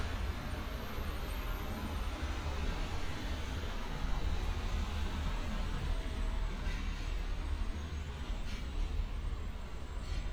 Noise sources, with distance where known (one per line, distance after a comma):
engine of unclear size